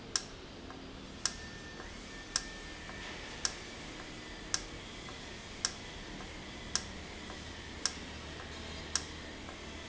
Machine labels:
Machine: valve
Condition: normal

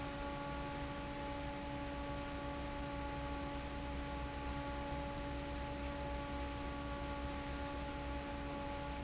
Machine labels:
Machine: fan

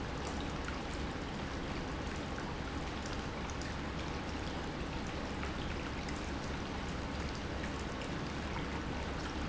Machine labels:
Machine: pump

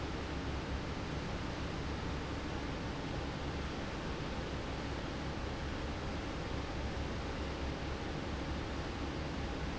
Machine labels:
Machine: fan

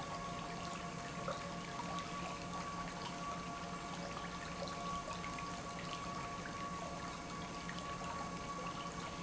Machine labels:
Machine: pump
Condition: normal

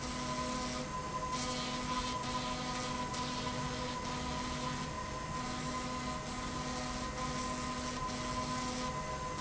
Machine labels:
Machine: slide rail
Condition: abnormal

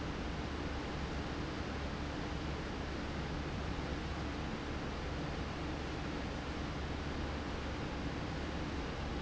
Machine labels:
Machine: fan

